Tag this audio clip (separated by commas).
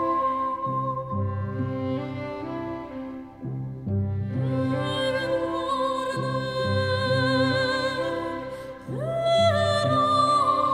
Music, Sad music